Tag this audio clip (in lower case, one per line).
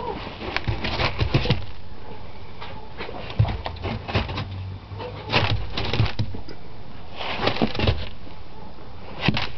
bow-wow